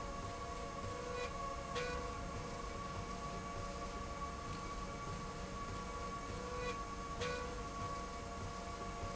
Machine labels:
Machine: slide rail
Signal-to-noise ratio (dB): 0 dB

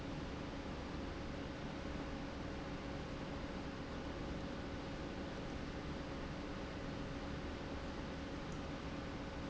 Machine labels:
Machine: pump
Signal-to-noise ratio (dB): 0 dB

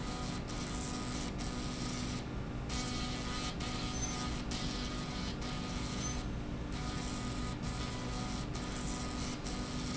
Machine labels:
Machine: slide rail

